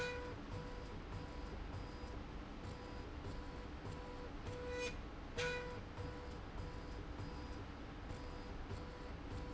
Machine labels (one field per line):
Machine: slide rail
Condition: normal